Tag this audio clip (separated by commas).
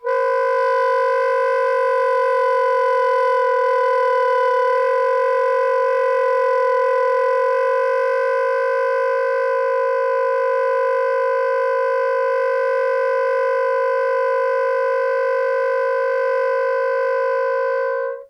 Music, Wind instrument, Musical instrument